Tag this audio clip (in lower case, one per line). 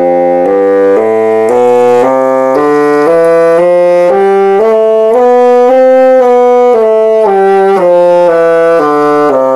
playing bassoon